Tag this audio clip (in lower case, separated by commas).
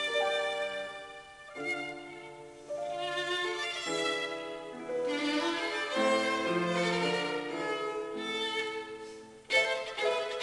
music, fiddle, violin, musical instrument